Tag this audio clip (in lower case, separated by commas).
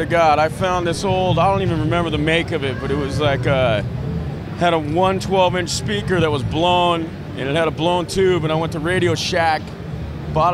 speech